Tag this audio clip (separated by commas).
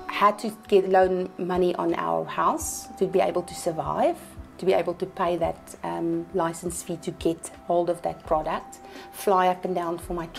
woman speaking